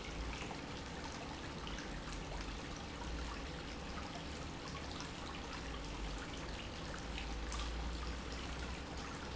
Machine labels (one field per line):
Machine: pump